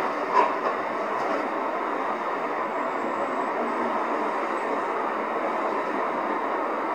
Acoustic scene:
street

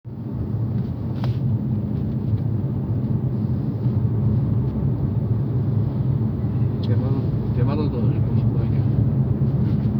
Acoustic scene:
car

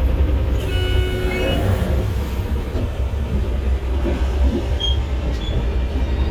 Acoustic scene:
bus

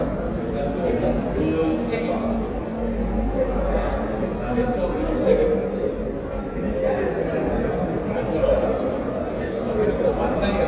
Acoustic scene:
crowded indoor space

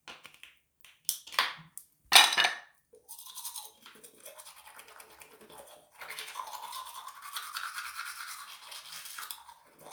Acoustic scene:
restroom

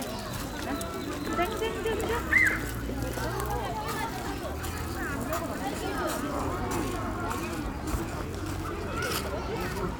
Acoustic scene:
park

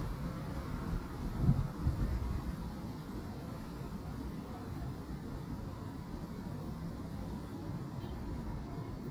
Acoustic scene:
residential area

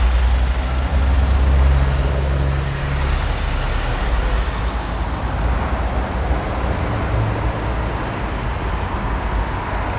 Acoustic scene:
street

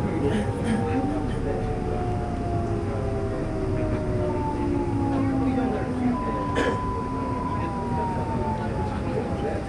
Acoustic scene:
subway train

